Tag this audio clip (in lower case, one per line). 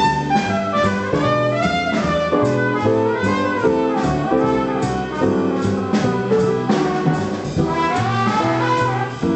musical instrument
music
jazz